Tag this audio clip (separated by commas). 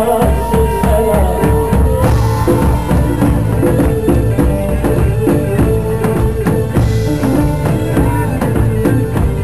Music